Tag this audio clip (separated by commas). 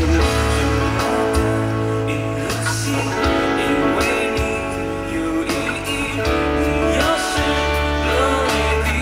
Plucked string instrument, Guitar, Music, Musical instrument, Electric guitar